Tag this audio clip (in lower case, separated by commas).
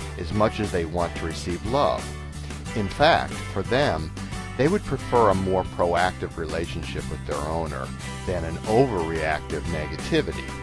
music, speech